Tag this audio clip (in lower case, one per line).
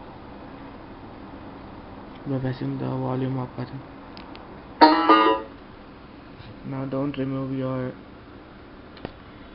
inside a small room
banjo
speech